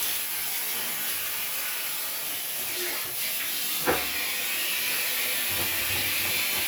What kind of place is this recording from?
restroom